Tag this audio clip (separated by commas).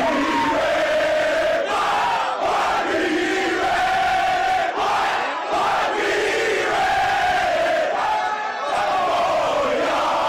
people cheering